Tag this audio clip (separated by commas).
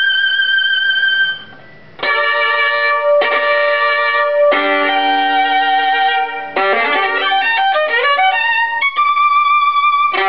fiddle, Music, Musical instrument